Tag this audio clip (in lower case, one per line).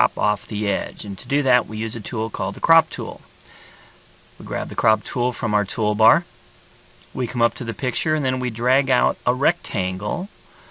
speech synthesizer